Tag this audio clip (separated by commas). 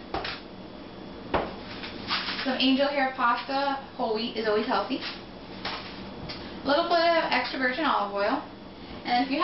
Speech